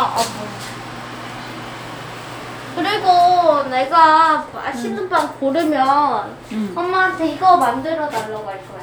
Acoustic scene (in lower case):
elevator